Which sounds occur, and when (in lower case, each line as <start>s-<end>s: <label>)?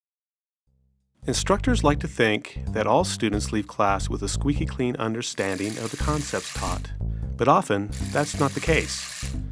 1.1s-9.5s: music
1.2s-2.5s: male speech
2.7s-6.9s: male speech
5.4s-6.9s: shower
7.0s-7.3s: breathing
7.4s-7.9s: male speech
7.9s-9.4s: shower
8.1s-9.1s: male speech